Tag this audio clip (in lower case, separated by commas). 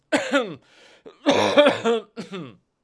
respiratory sounds, cough